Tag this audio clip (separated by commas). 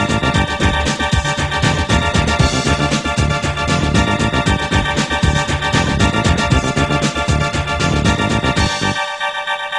Blues, Music